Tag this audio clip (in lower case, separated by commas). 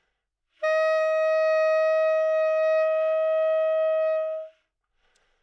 musical instrument, woodwind instrument, music